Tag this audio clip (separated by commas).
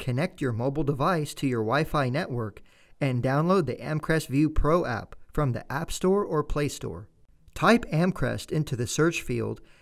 Speech